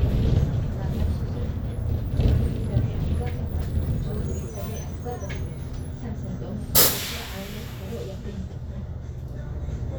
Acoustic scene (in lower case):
bus